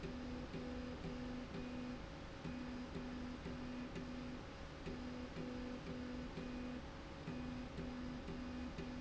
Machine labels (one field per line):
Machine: slide rail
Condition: normal